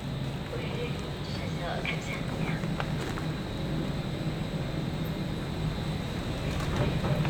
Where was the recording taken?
in a subway station